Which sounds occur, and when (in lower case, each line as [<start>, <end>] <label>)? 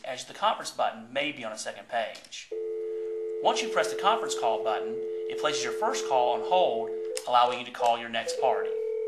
[0.00, 9.05] background noise
[2.44, 7.23] busy signal
[2.77, 3.12] breathing
[7.14, 8.68] man speaking
[7.63, 7.84] clicking
[8.29, 9.05] telephone